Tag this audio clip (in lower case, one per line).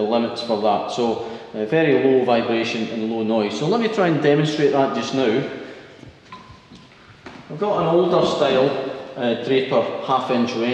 speech